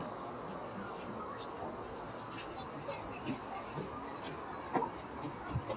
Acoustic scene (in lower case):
park